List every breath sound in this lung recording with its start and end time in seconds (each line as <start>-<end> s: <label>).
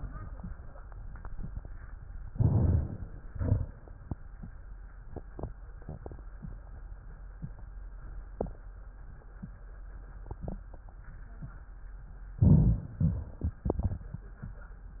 2.25-3.16 s: crackles
2.27-3.16 s: inhalation
3.19-4.10 s: crackles
3.23-4.12 s: exhalation
12.36-12.97 s: crackles
12.36-12.99 s: inhalation
13.01-14.05 s: exhalation
13.01-14.05 s: crackles